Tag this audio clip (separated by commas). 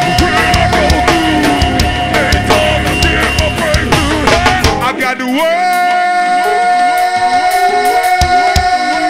Music